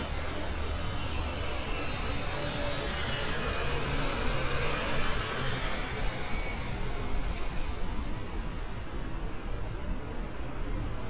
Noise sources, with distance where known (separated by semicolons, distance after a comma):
engine of unclear size, near